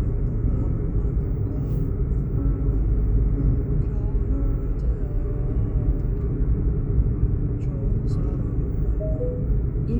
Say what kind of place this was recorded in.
car